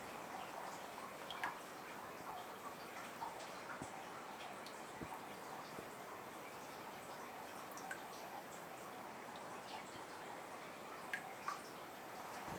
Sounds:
water, raindrop, rain

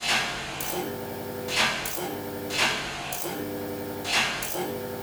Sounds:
mechanisms

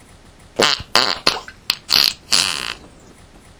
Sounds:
fart

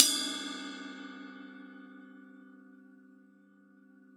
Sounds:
cymbal, crash cymbal, percussion, musical instrument, music

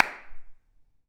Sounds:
clapping, hands

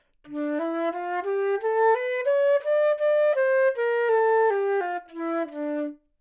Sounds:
music, woodwind instrument, musical instrument

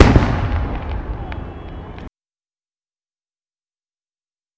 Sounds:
fireworks, explosion

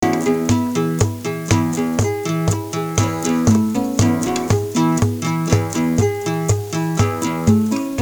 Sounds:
musical instrument, guitar, music, acoustic guitar, plucked string instrument

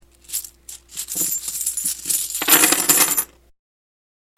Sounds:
coin (dropping), home sounds

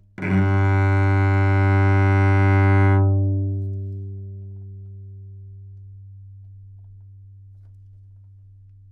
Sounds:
music, bowed string instrument, musical instrument

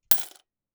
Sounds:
domestic sounds, coin (dropping)

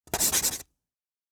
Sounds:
home sounds, writing

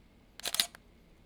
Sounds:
camera, mechanisms

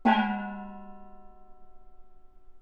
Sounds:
music, musical instrument, gong, percussion

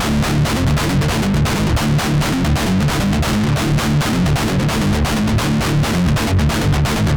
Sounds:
plucked string instrument, musical instrument, guitar, music

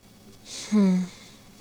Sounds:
sigh, respiratory sounds, human voice, breathing

